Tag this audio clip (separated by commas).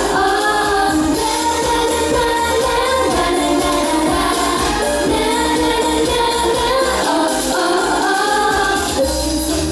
Music, Happy music